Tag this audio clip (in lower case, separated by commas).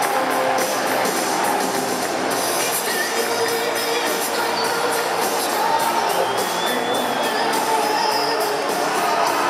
female singing, music